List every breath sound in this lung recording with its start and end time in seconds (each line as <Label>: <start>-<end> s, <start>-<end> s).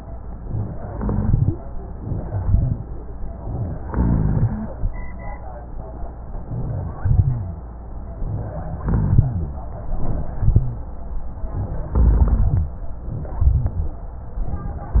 Inhalation: 0.70-1.56 s, 3.91-4.73 s, 8.86-9.58 s, 11.97-12.81 s
Exhalation: 2.15-2.85 s, 6.95-7.65 s, 10.00-10.83 s, 13.34-14.04 s
Rhonchi: 0.87-1.56 s, 2.16-2.89 s, 3.91-4.73 s, 6.96-7.69 s, 8.86-9.58 s, 10.02-10.85 s, 11.97-12.81 s, 13.34-14.04 s